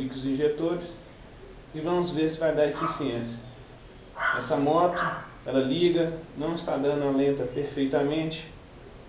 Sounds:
Speech

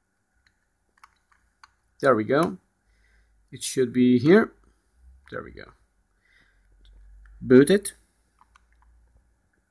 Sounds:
Speech, inside a small room

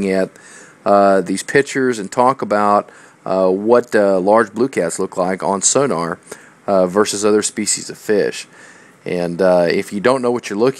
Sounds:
Speech

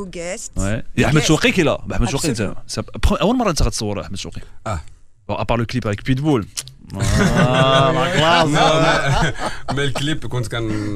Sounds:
Speech

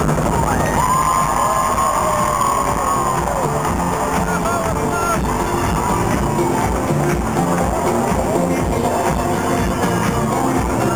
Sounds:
outside, urban or man-made, Music

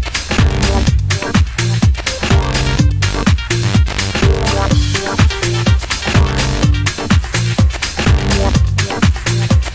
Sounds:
Dance music, Music, House music

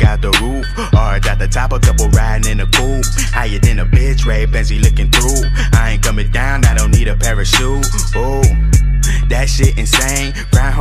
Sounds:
Pop music, Background music, Music, Rhythm and blues

